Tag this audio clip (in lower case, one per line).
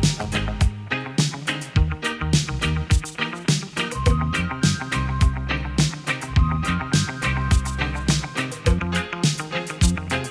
music